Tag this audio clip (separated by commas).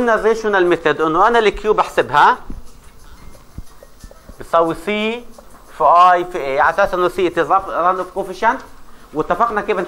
Speech